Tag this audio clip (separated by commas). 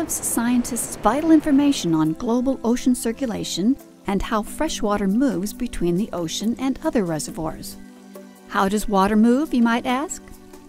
Music, Speech